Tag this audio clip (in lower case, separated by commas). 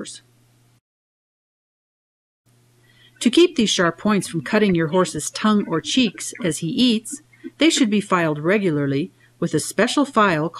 speech